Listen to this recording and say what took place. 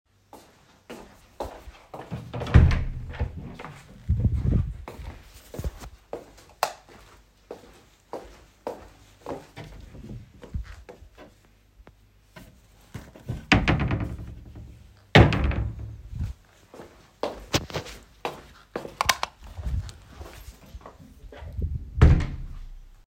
I walked down the hallway and opened a door. I turned on the light and walked to the wardrobe, opened it and closed it again. I then turned off the light and closed the door behind me.